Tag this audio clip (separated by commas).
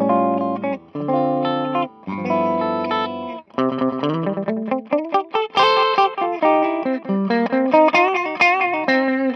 Electric guitar, Guitar, Strum, Plucked string instrument, playing electric guitar, Musical instrument, Music